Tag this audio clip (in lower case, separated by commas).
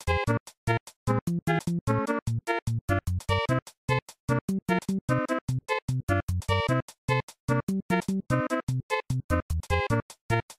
video game music, music